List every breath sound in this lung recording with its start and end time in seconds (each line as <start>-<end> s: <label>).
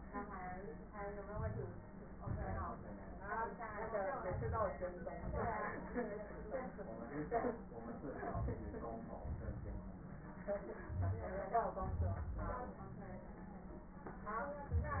1.25-1.96 s: inhalation
1.25-1.96 s: crackles
1.97-2.80 s: exhalation
1.97-2.80 s: crackles
4.20-5.21 s: inhalation
4.20-5.21 s: crackles
5.20-5.61 s: exhalation
8.13-9.20 s: inhalation
8.13-9.20 s: crackles
9.21-10.15 s: exhalation
9.21-10.15 s: crackles
10.85-11.31 s: wheeze
10.85-11.76 s: inhalation
11.77-12.78 s: exhalation
11.86-12.69 s: wheeze
14.74-15.00 s: wheeze